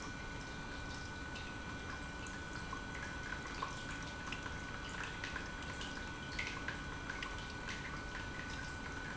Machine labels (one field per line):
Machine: pump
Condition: normal